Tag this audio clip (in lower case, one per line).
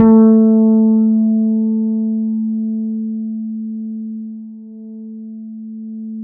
music
guitar
bass guitar
musical instrument
plucked string instrument